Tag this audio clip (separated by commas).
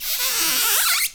Squeak